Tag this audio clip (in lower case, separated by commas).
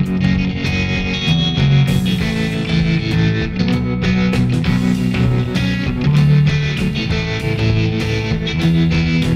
music, distortion, guitar, effects unit, bass guitar, musical instrument, playing bass guitar